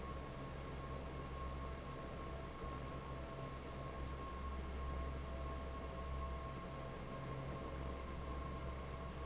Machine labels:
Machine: fan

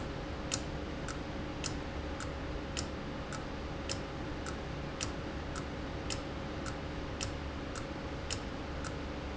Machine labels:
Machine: valve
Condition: abnormal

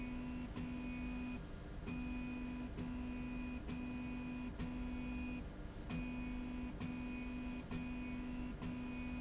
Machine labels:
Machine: slide rail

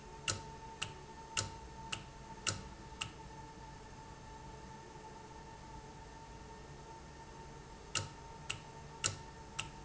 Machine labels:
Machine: valve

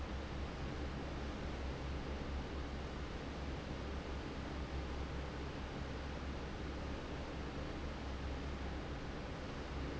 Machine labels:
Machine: fan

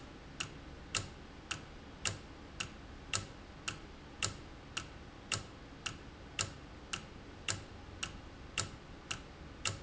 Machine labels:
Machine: valve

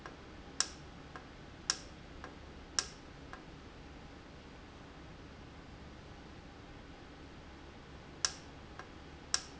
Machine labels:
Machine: valve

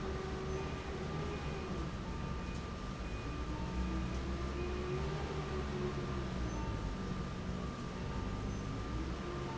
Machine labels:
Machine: fan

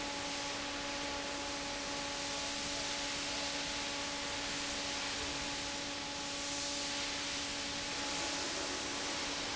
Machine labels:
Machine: fan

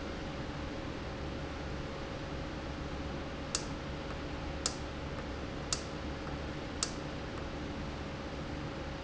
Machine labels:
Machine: valve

